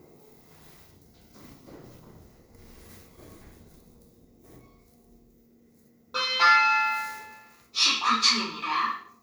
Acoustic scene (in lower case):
elevator